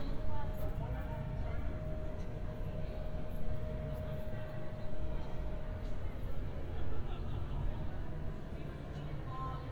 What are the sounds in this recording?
person or small group talking